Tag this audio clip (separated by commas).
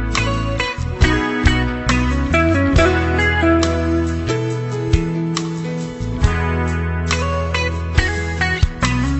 Steel guitar, Music